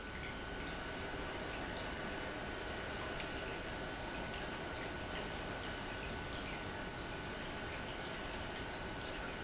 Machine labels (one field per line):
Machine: pump